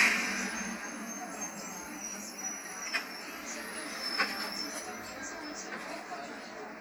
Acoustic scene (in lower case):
bus